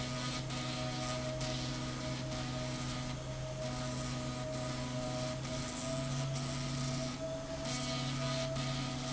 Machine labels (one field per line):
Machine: slide rail